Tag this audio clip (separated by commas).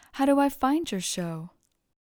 Speech, woman speaking, Human voice